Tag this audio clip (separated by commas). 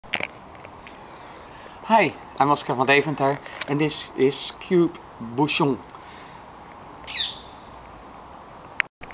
Bird